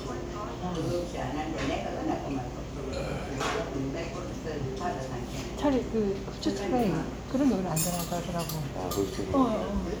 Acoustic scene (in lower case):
crowded indoor space